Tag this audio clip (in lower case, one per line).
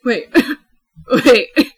laughter
woman speaking
speech
human voice